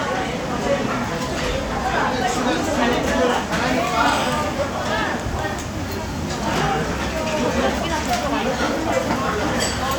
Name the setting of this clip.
crowded indoor space